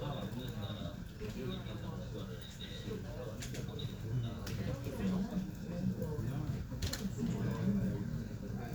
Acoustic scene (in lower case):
crowded indoor space